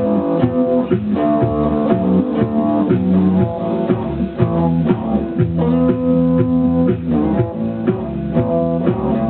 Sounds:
Music, Rock and roll, Musical instrument, Guitar, Plucked string instrument, Bass guitar

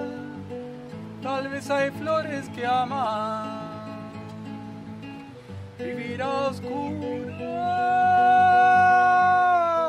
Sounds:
Music, Boat

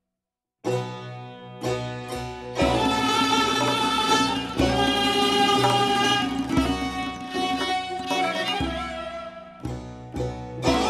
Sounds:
Music

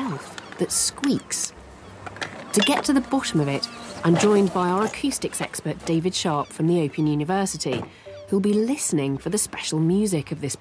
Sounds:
Speech, Music

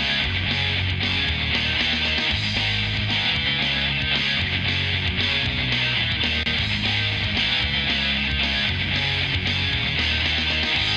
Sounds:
Country, Music

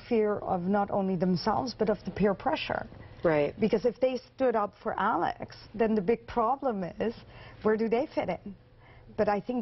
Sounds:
Speech

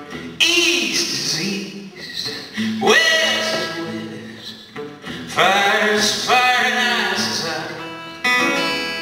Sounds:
Music

